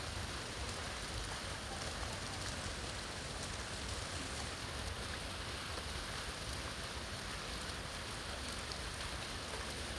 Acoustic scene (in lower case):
park